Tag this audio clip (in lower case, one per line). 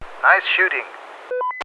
human voice
man speaking
speech